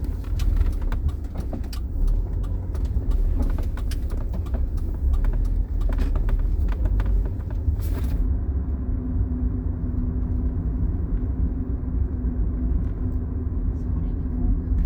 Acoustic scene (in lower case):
car